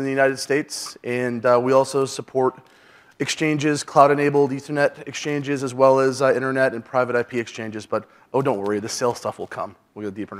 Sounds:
speech

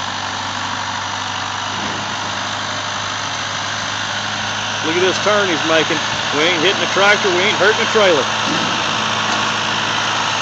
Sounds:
speech

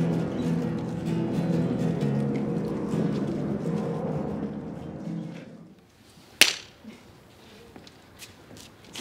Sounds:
speech, music, writing, clapping

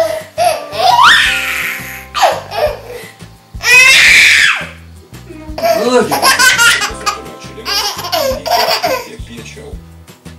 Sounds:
baby laughter

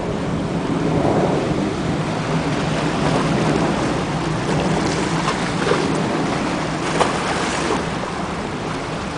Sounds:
speech

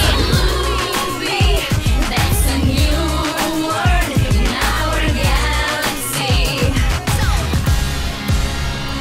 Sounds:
music

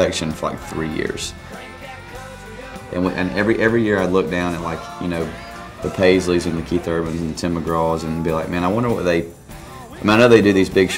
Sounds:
exciting music, speech, music

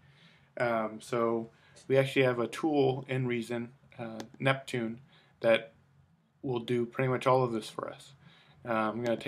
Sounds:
speech

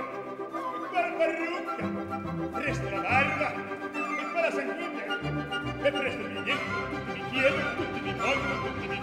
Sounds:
singing

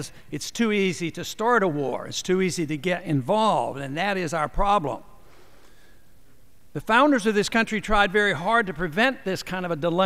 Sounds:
monologue, speech, male speech

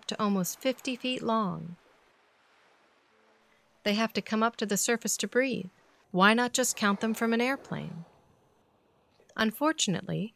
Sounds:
speech

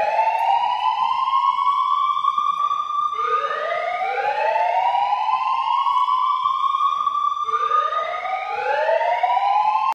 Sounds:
siren

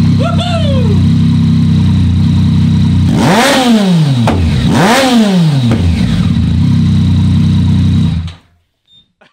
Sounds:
vroom, vehicle

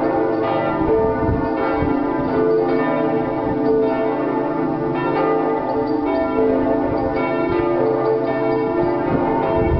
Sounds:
change ringing (campanology)

